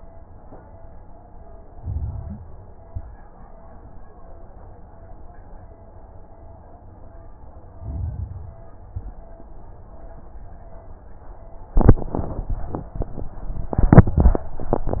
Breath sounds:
1.73-2.41 s: inhalation
1.73-2.41 s: crackles
2.83-3.25 s: exhalation
2.83-3.25 s: crackles
7.77-8.66 s: inhalation
7.77-8.66 s: crackles
8.85-9.27 s: exhalation
8.85-9.27 s: crackles

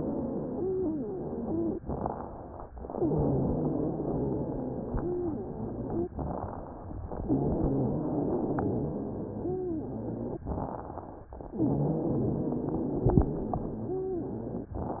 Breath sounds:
0.00-1.75 s: wheeze
1.82-2.68 s: inhalation
1.82-2.68 s: crackles
2.92-6.11 s: exhalation
2.92-6.11 s: wheeze
6.17-7.02 s: inhalation
6.17-7.02 s: crackles
7.27-10.46 s: exhalation
7.27-10.46 s: wheeze
10.51-11.27 s: inhalation
10.51-11.27 s: crackles
11.48-14.76 s: exhalation
11.48-14.76 s: wheeze

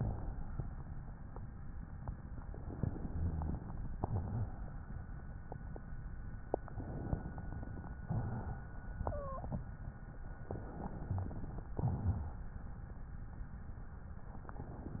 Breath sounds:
0.00-0.70 s: exhalation
2.44-3.56 s: inhalation
3.93-4.83 s: exhalation
6.54-7.89 s: inhalation
8.06-9.67 s: exhalation
9.01-9.67 s: wheeze
10.45-11.69 s: inhalation
11.72-12.54 s: exhalation

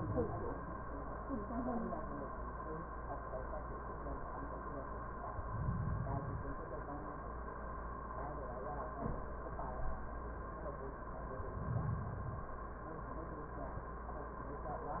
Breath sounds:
5.29-6.68 s: inhalation
11.20-12.66 s: inhalation

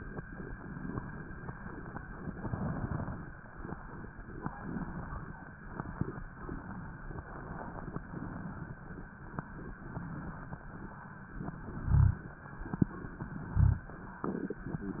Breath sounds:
2.14-3.26 s: inhalation
2.14-3.26 s: crackles
4.62-5.38 s: inhalation
11.43-12.35 s: inhalation
12.92-13.84 s: inhalation
14.68-15.00 s: inhalation

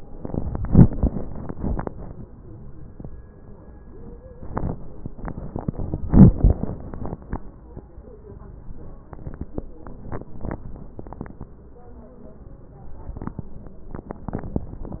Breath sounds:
2.38-2.82 s: wheeze
2.38-3.37 s: inhalation
8.23-9.08 s: wheeze

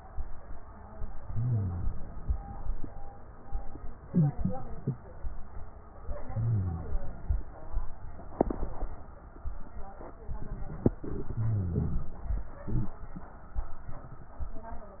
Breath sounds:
1.15-2.00 s: inhalation
6.13-7.12 s: inhalation
11.16-12.15 s: inhalation

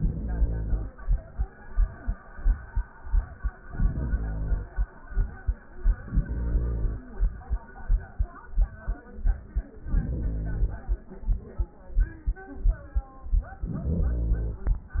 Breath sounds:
0.00-0.99 s: inhalation
3.62-4.90 s: inhalation
5.93-7.21 s: inhalation
9.78-11.05 s: inhalation
13.56-14.83 s: inhalation

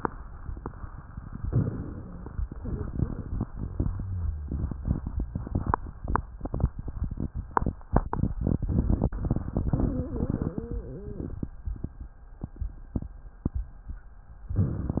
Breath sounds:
1.42-2.47 s: inhalation
2.52-3.87 s: exhalation
9.96-11.37 s: wheeze

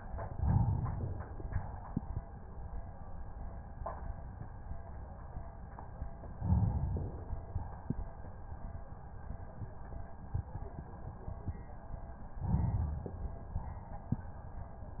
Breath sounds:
0.27-1.58 s: inhalation
6.32-7.63 s: inhalation
12.35-13.66 s: inhalation

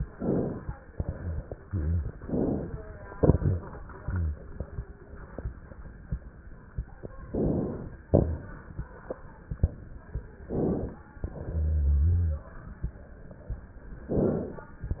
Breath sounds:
0.09-0.74 s: inhalation
0.91-1.56 s: exhalation
1.08-1.43 s: rhonchi
1.57-2.17 s: rhonchi
2.22-2.83 s: inhalation
3.13-3.74 s: exhalation
3.99-4.42 s: rhonchi
7.31-7.93 s: inhalation
8.10-8.73 s: exhalation
10.40-11.02 s: inhalation
11.23-12.50 s: exhalation
11.46-12.50 s: rhonchi
14.14-14.77 s: inhalation

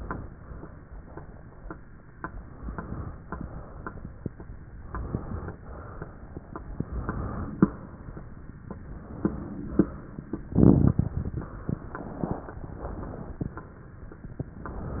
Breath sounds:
2.18-3.18 s: inhalation
3.24-4.24 s: exhalation
4.87-5.62 s: inhalation
5.59-6.51 s: exhalation
6.67-7.59 s: inhalation
7.65-8.45 s: exhalation
8.81-9.61 s: inhalation
9.69-10.49 s: exhalation
11.41-12.57 s: inhalation
12.60-13.52 s: exhalation
14.66-15.00 s: inhalation

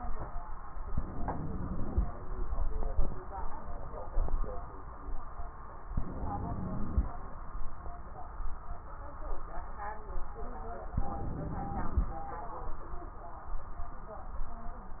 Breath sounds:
0.90-2.12 s: inhalation
0.90-2.12 s: wheeze
5.89-7.12 s: inhalation
5.89-7.12 s: wheeze
10.92-12.15 s: inhalation
10.92-12.15 s: wheeze

